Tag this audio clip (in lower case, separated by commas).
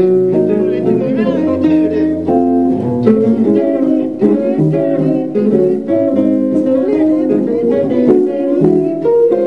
musical instrument, ukulele, plucked string instrument, music, guitar